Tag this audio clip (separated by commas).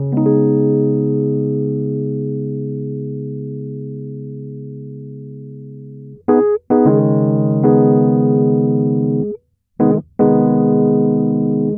Music, Piano, Keyboard (musical), Musical instrument